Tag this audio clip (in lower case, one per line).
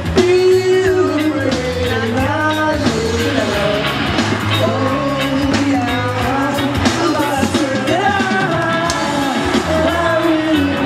music
musical instrument
guitar